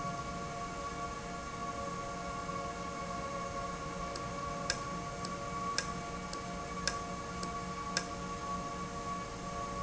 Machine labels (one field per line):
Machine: valve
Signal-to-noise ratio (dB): -6 dB